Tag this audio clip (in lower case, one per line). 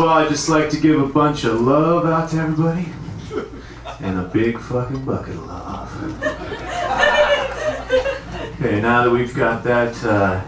snicker
speech